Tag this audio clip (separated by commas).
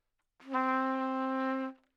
Trumpet, Musical instrument, Brass instrument, Music